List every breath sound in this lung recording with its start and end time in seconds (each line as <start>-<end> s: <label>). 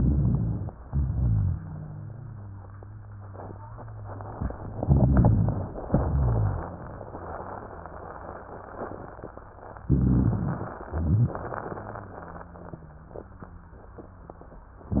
0.00-0.70 s: inhalation
0.00-0.70 s: rhonchi
0.86-4.76 s: exhalation
0.86-4.76 s: rhonchi
4.80-5.84 s: inhalation
4.80-5.84 s: rhonchi
5.88-7.15 s: exhalation
5.88-7.15 s: rhonchi
9.88-10.78 s: inhalation
9.88-10.78 s: rhonchi
10.88-14.64 s: exhalation
10.88-14.64 s: rhonchi
14.92-15.00 s: inhalation
14.92-15.00 s: rhonchi